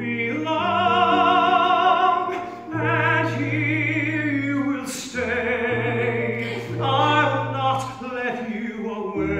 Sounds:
music

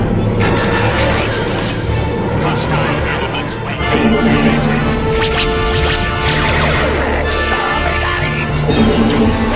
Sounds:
speech, music

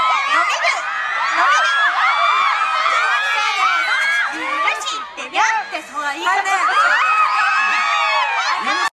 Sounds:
speech

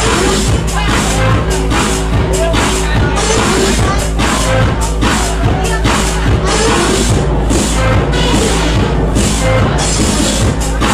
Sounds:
music, electronic music

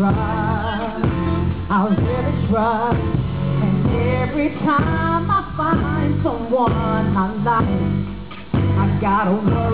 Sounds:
music

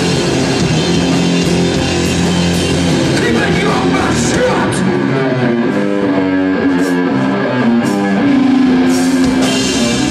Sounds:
speech, music, rock music, heavy metal

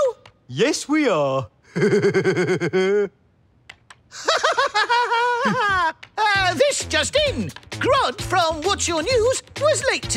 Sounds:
speech, music

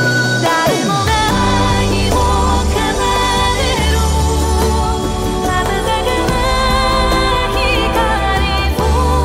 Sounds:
exciting music, music

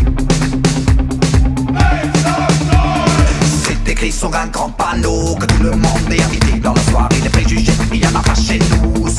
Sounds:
music

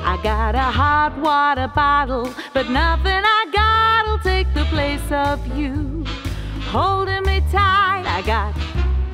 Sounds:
music

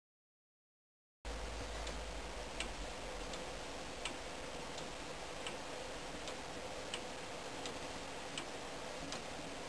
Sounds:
tick-tock

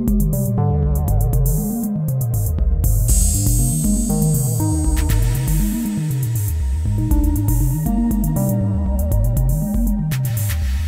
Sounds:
synthesizer, music

